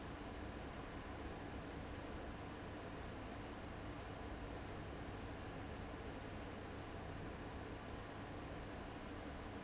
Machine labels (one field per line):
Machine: fan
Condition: abnormal